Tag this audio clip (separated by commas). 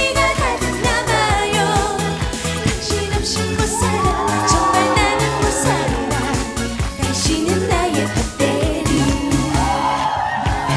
Singing, Music of Asia